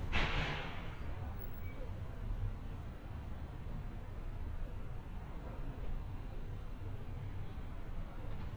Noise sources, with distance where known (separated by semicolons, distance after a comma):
background noise